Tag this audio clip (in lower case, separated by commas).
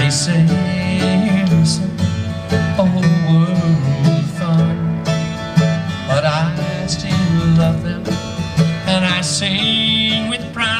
music, guitar, plucked string instrument, musical instrument